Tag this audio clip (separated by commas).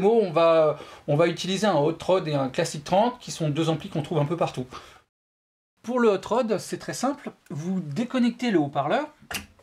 Speech